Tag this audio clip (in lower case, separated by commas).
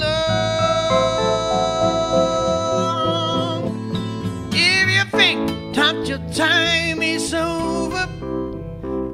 music